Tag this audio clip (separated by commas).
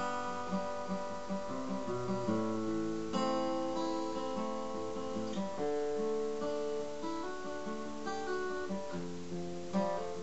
Music